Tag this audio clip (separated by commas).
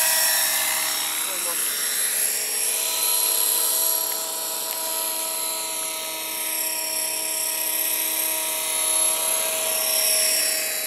Speech